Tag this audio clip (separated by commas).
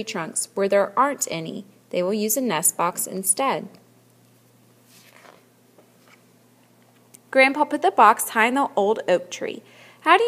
Speech